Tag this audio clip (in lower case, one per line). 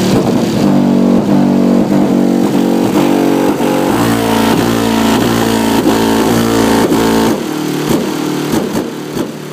car
speech
motor vehicle (road)
vehicle